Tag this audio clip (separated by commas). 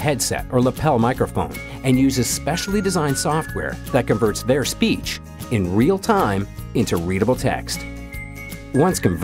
Music, Speech